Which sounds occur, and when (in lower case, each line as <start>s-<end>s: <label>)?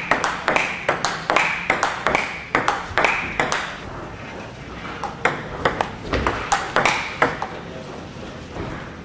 0.0s-9.0s: mechanisms
0.0s-0.1s: tap
0.2s-0.3s: bouncing
0.4s-0.5s: tap
0.5s-0.6s: bouncing
0.8s-1.0s: tap
1.0s-1.1s: bouncing
1.2s-1.4s: tap
1.3s-1.5s: bouncing
1.6s-1.7s: tap
1.8s-2.0s: bouncing
2.0s-2.1s: tap
2.1s-2.3s: bouncing
2.5s-2.6s: tap
2.6s-2.8s: bouncing
2.9s-3.1s: tap
3.0s-3.2s: bouncing
3.3s-3.5s: tap
3.5s-3.7s: bouncing
3.8s-4.4s: speech
4.9s-5.1s: tap
5.2s-5.4s: bouncing
5.5s-5.7s: tap
5.8s-5.9s: bouncing
6.1s-6.2s: tap
6.2s-6.3s: bouncing
6.5s-6.6s: tap
6.8s-7.1s: bouncing
7.1s-7.3s: tap
7.5s-8.5s: man speaking